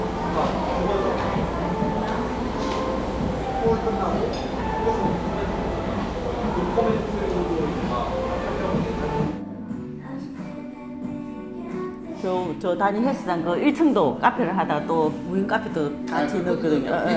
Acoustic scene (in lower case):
cafe